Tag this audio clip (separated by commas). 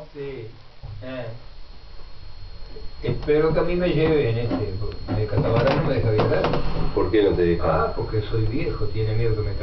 Speech